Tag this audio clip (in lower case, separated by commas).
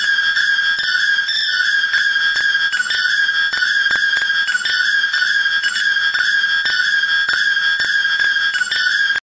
music